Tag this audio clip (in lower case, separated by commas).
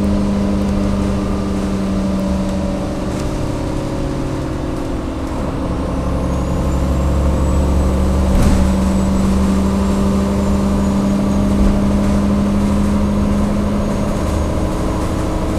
motor vehicle (road), vehicle, bus